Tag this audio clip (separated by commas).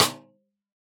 Snare drum, Musical instrument, Drum, Music, Percussion